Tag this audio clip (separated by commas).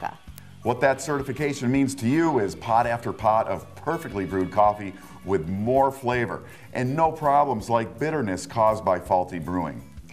Music, Speech